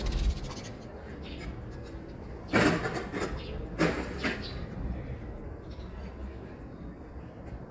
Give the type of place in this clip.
residential area